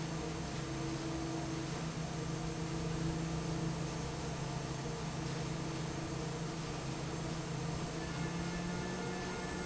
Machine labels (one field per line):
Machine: fan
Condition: normal